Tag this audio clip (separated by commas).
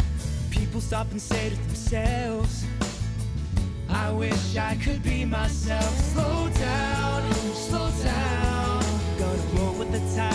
Music